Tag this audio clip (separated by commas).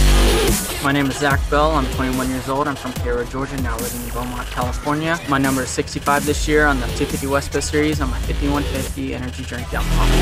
Music, Speech